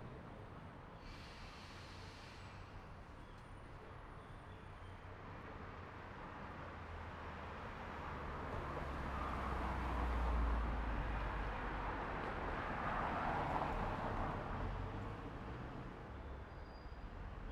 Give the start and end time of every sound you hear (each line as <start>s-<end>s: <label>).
1.1s-2.6s: truck compressor
1.1s-4.9s: truck
2.7s-4.9s: truck brakes
5.3s-15.9s: car wheels rolling
5.3s-17.5s: car
8.9s-10.9s: car engine accelerating
17.1s-17.5s: car engine accelerating